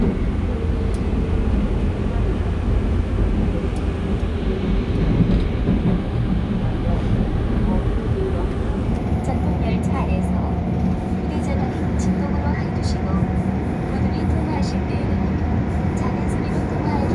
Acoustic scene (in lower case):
subway train